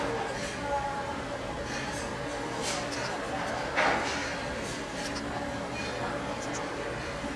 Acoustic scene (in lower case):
restaurant